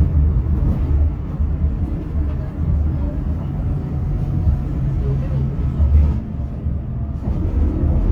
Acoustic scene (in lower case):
bus